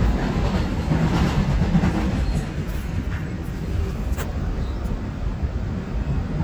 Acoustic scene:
subway train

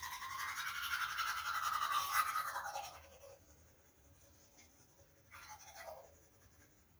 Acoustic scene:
restroom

